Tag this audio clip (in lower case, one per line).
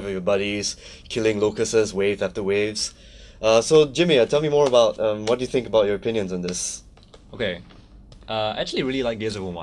speech